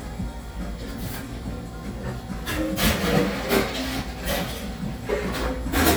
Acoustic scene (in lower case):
cafe